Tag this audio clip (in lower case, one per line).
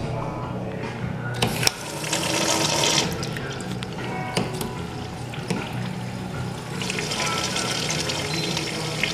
water
toilet flush